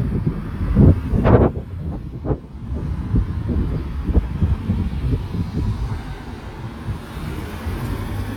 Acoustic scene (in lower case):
residential area